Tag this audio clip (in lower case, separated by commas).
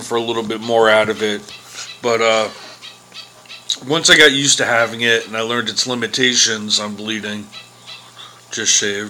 speech